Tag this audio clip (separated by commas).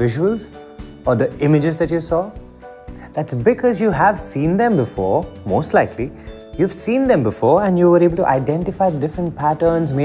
Speech, Music